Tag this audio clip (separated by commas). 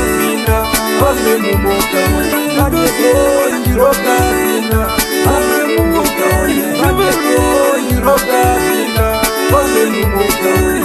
Music